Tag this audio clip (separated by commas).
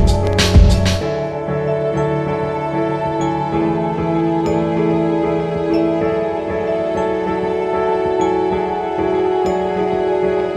Background music